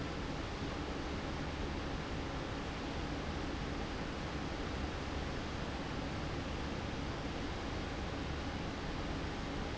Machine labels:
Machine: fan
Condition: abnormal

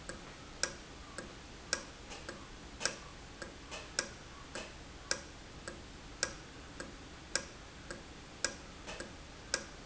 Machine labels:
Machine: valve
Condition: normal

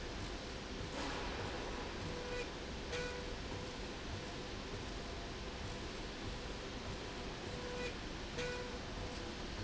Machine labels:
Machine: slide rail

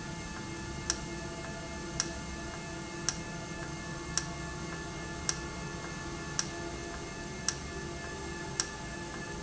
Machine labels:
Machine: valve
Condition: normal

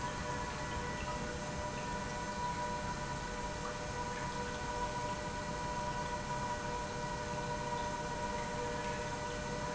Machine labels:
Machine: pump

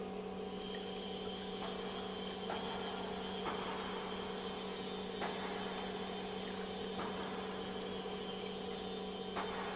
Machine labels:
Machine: pump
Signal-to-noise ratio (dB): 0 dB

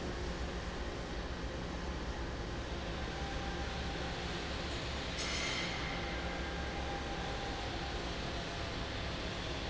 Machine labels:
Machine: fan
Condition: normal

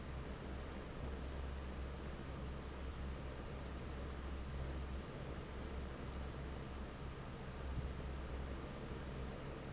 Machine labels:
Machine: fan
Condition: normal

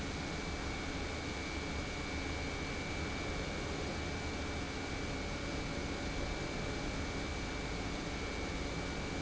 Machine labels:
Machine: pump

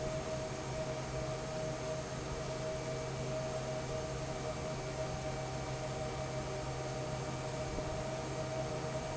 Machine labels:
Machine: fan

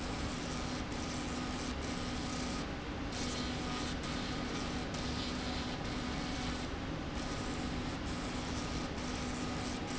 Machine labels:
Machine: slide rail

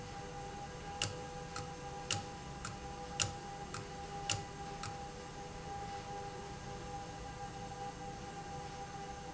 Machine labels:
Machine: valve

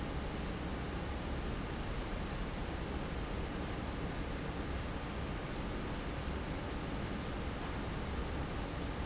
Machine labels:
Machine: fan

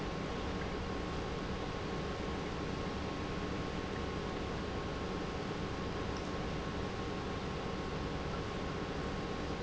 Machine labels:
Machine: pump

